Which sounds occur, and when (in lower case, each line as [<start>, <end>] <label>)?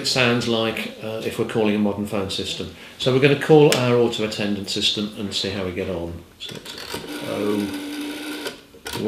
[0.00, 2.63] male speech
[0.00, 9.05] mechanisms
[2.65, 2.93] breathing
[2.94, 6.16] male speech
[6.33, 8.53] telephone dialing
[7.12, 7.68] male speech